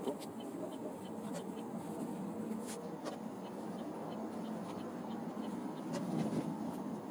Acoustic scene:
car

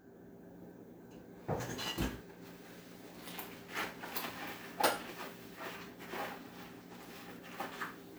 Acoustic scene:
kitchen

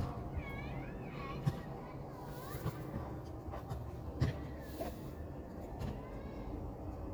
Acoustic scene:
park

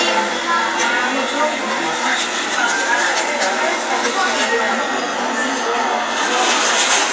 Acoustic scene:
crowded indoor space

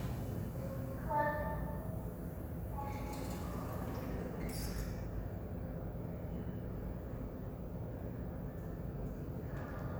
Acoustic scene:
elevator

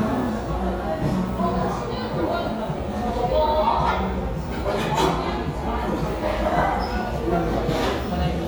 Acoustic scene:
cafe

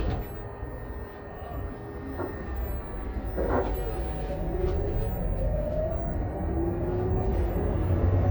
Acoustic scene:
bus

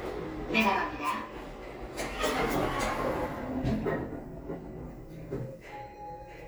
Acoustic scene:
elevator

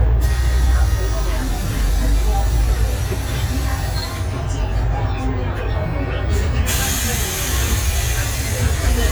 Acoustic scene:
bus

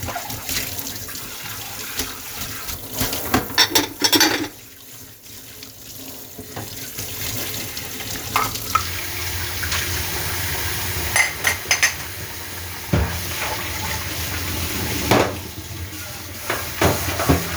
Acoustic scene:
kitchen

